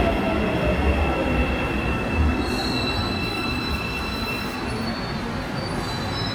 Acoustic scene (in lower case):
subway station